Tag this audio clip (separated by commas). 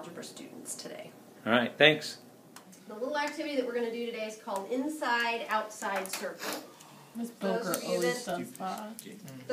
Speech